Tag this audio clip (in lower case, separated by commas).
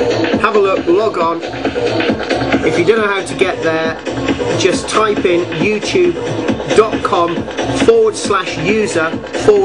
techno, speech, music